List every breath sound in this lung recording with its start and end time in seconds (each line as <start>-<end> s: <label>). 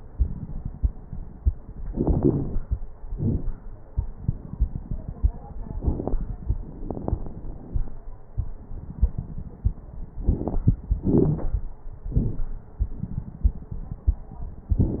1.86-2.67 s: inhalation
1.86-2.67 s: crackles
3.07-3.50 s: exhalation
3.07-3.50 s: crackles
5.77-6.20 s: inhalation
5.77-6.20 s: crackles
6.86-7.87 s: exhalation
6.86-7.87 s: crackles
10.24-10.76 s: inhalation
10.24-10.76 s: crackles
11.01-11.53 s: exhalation
11.01-11.53 s: crackles